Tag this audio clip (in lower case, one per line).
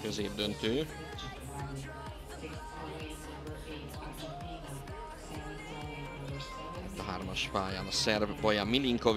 music
speech